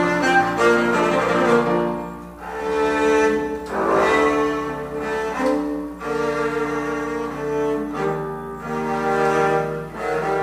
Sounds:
double bass, musical instrument, music

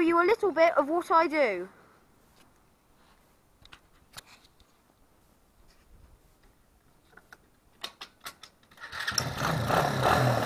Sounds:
speech

